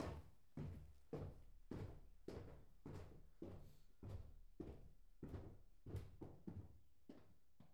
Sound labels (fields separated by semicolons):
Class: footsteps; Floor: wooden floor